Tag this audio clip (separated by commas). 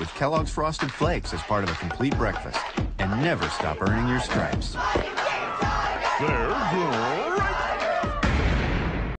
Music, Speech